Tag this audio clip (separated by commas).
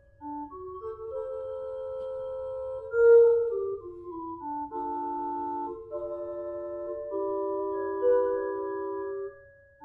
Music, Musical instrument